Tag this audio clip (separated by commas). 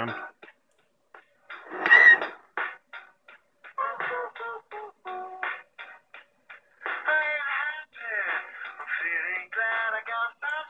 Radio, Music